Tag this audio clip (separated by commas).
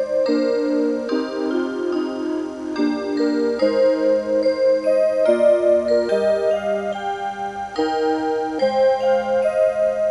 Music